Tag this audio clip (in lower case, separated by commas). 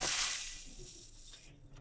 home sounds, frying (food)